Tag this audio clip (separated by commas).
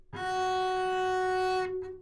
Musical instrument, Music, Bowed string instrument